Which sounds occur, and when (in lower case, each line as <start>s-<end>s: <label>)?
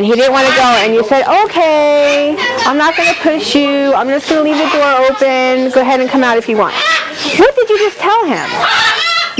0.0s-9.3s: background noise
0.0s-7.1s: female speech
2.9s-3.3s: shout
6.7s-7.1s: shout
6.8s-7.5s: sneeze
7.3s-7.9s: shout
7.4s-9.3s: female speech
8.3s-9.0s: shout